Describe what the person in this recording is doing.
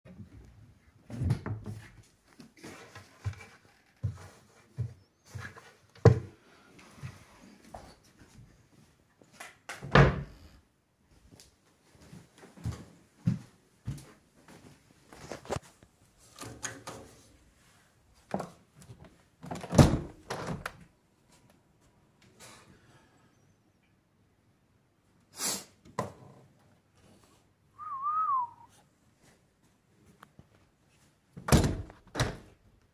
I open the wardrobe and search for my hat. After I get it, I close it, walk towards the window. I open the window and check the weather outside, then close it again.